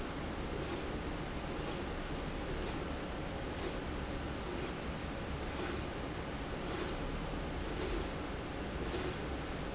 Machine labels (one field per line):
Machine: slide rail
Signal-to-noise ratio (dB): -6 dB